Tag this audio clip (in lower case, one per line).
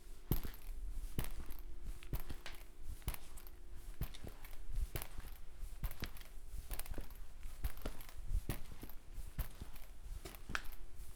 walk